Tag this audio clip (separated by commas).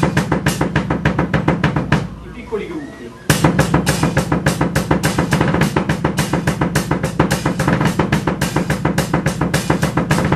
Drum, Percussion, Cymbal, Speech, Bass drum, Musical instrument, Music, Drum kit, Hi-hat